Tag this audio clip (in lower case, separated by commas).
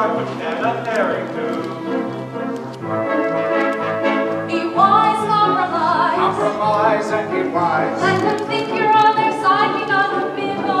tender music, music